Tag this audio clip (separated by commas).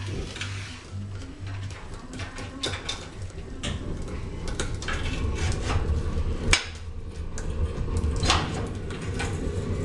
Music